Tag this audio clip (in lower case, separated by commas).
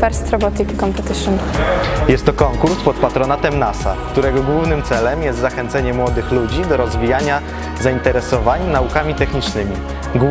speech, music